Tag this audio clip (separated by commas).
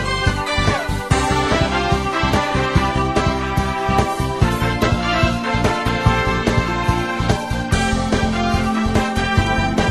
Music